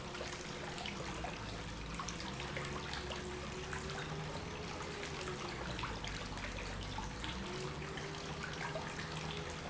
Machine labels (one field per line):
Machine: pump